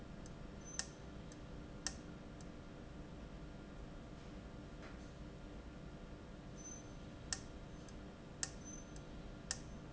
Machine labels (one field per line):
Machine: valve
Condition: abnormal